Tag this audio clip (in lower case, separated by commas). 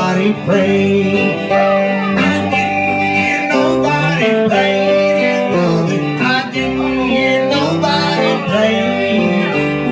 music